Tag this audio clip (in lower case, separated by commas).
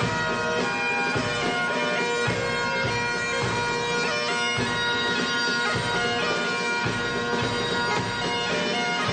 playing bagpipes